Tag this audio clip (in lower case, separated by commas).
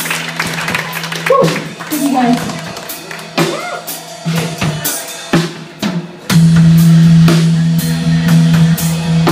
speech, music